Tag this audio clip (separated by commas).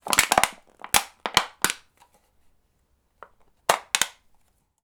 Crushing